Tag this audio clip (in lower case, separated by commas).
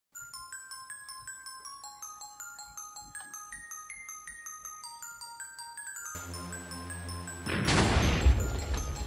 music, arrow